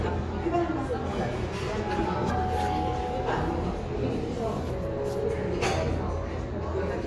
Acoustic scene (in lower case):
cafe